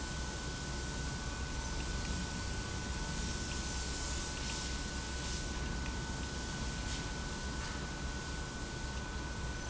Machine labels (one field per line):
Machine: pump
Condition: abnormal